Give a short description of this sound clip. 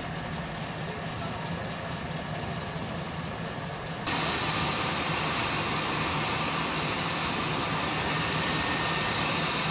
A helicopter is idling quietly then more loudly